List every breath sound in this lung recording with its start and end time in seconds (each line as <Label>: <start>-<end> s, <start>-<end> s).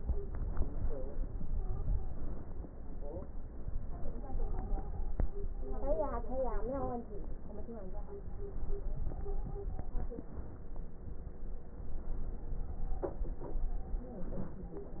Stridor: 1.46-2.53 s, 3.83-5.14 s, 8.85-10.30 s